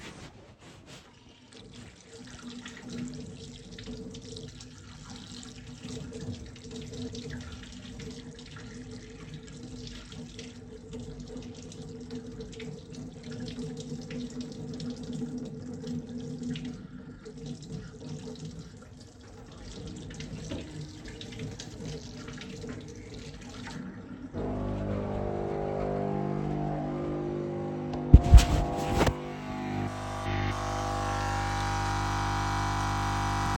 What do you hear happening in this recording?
I turned on the sink water and then I turned on coffee machine and let it operate.